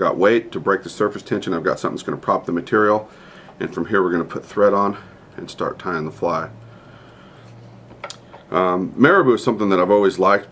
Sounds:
Speech

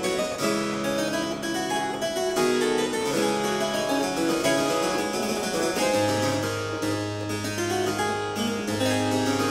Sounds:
Music, Harpsichord, Piano, playing harpsichord, Musical instrument, Keyboard (musical)

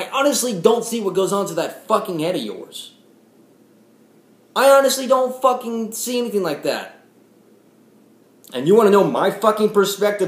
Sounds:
Speech

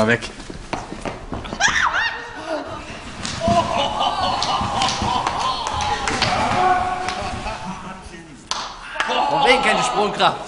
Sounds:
Speech

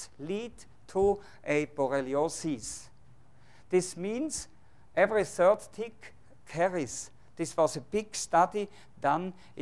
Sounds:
Speech

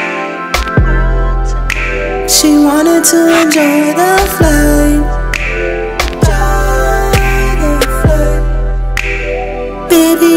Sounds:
Music

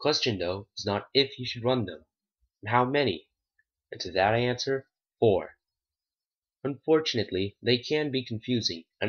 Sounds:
Speech

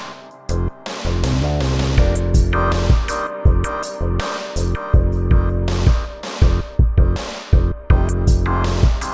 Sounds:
Music

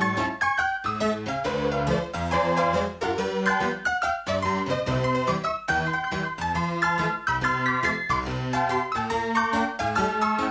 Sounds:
Music

